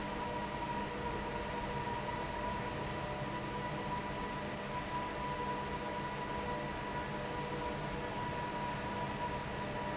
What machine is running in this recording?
fan